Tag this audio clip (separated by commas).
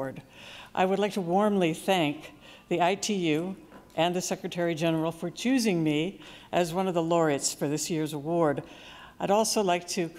Narration, woman speaking, Speech